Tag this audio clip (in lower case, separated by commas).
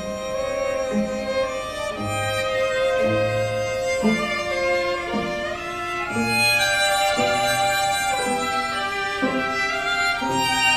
bowed string instrument, fiddle, orchestra, musical instrument, harmonica, music, cello